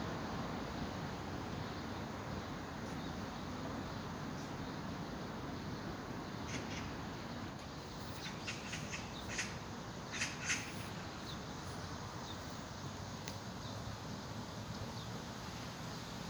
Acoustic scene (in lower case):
park